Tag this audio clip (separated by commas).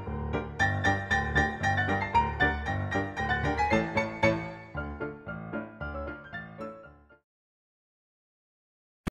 Music